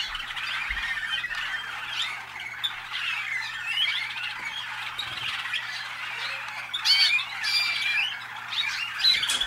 Flock of birds chirping